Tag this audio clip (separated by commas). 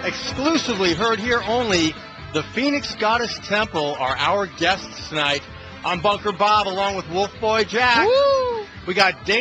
Music, Speech